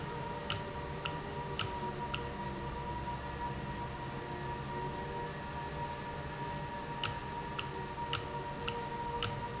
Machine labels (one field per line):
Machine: valve